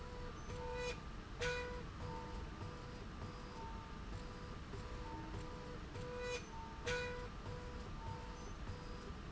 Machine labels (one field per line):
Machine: slide rail